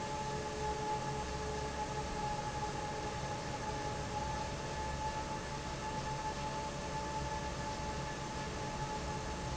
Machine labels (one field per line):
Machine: fan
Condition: normal